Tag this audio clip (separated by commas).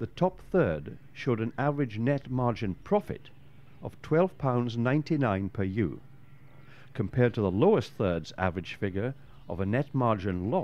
Speech